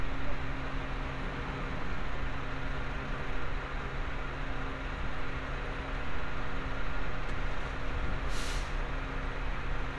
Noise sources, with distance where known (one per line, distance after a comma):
large-sounding engine